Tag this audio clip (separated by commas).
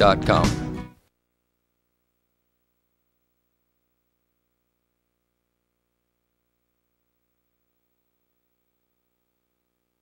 Speech